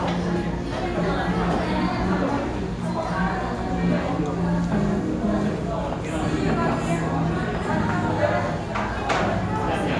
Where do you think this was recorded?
in a restaurant